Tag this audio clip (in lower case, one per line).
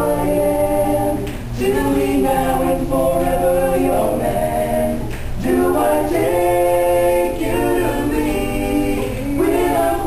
male singing